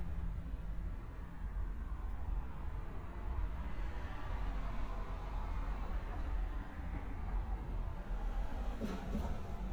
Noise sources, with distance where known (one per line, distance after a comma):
medium-sounding engine